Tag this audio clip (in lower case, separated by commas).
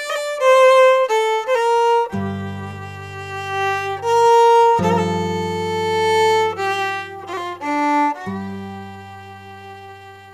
music